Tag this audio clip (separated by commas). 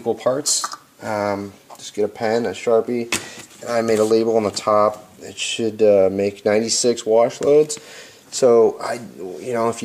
Speech